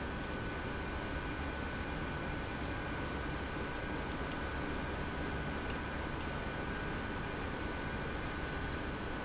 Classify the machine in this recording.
pump